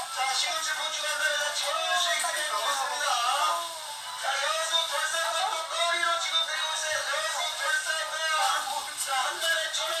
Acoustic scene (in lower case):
crowded indoor space